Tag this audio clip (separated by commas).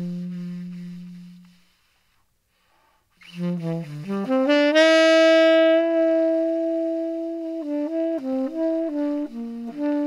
Wind instrument, Saxophone, Musical instrument, inside a large room or hall, Jazz, Music